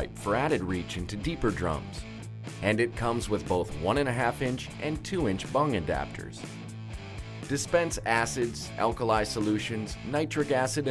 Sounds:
speech, music, musical instrument

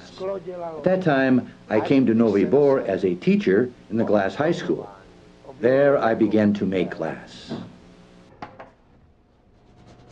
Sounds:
speech

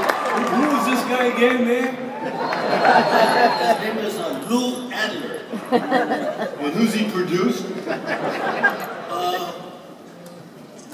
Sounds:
speech

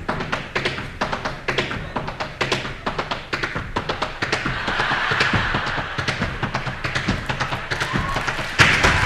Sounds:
tap

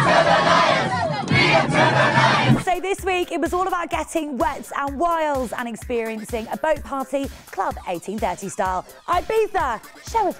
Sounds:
music, speech

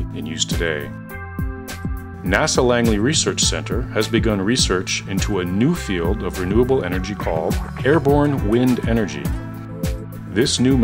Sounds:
music, speech

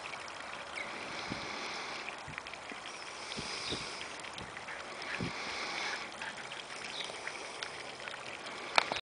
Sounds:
horse, clip-clop, animal, whinny

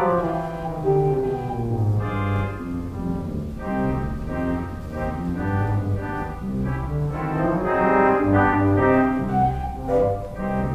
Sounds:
organ, hammond organ

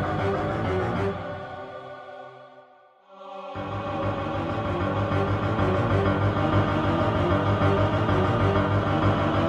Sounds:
scary music, music, soundtrack music

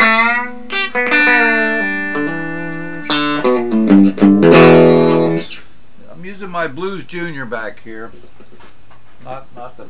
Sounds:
guitar, bass guitar, strum, music, electric guitar, musical instrument, speech, plucked string instrument

